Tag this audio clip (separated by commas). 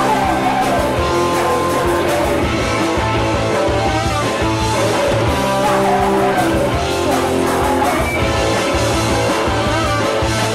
Music